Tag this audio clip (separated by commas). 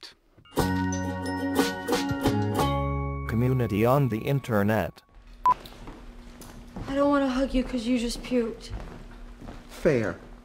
Female speech, Speech, Music, inside a large room or hall